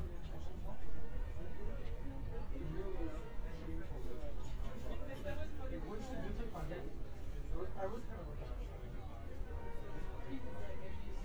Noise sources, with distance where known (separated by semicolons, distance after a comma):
person or small group talking, near